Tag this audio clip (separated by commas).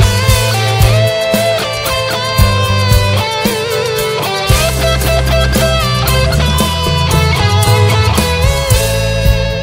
Electric guitar, Guitar, Plucked string instrument, Music, Musical instrument